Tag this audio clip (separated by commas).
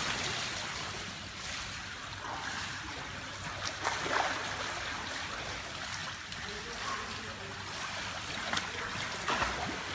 swimming